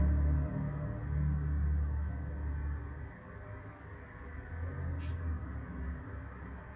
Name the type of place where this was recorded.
street